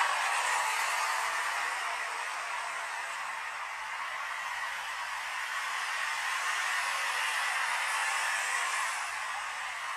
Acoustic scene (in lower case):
street